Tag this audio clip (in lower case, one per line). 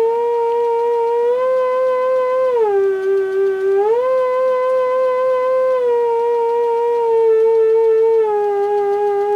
theremin
music